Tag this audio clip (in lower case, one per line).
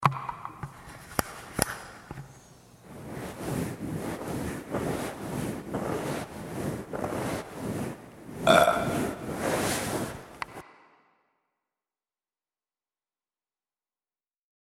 burping